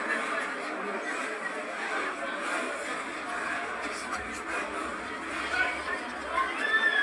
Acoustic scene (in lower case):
restaurant